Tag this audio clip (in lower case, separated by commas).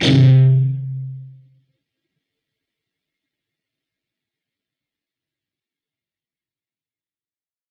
music, plucked string instrument, musical instrument, guitar